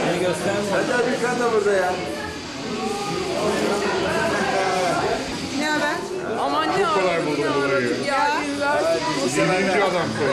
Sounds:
Speech

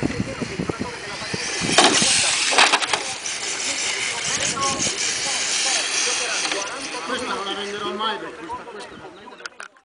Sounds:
Speech

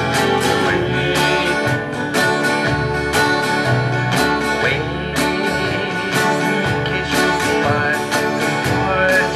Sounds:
Music

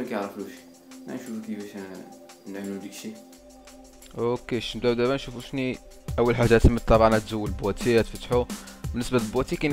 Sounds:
Speech, Music

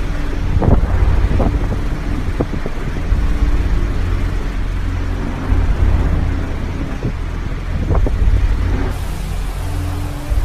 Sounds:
sea waves

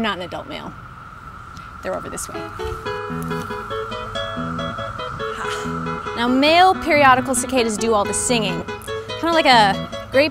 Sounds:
Speech, Music

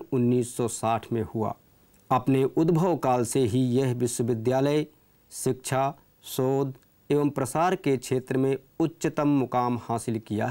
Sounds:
Speech, man speaking

